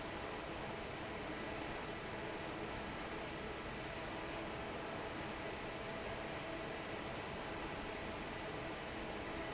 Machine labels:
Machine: fan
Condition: normal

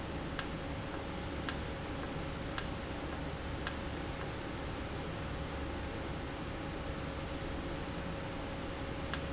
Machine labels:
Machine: valve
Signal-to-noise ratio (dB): -6 dB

